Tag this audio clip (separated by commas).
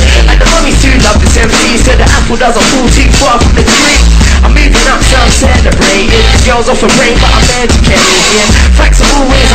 Music